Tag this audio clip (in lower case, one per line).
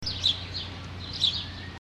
bird
animal
wild animals